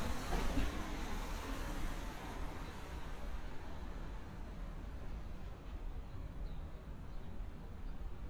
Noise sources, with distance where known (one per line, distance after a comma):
background noise